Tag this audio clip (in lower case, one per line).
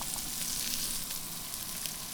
home sounds
frying (food)